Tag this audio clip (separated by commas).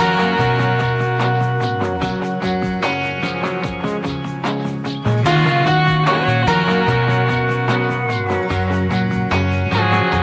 Music